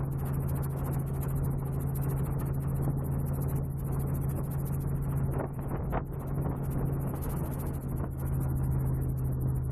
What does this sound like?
Wind is blowing gently and something is ticking